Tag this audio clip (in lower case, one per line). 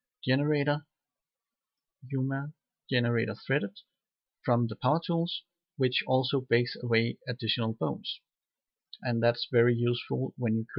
speech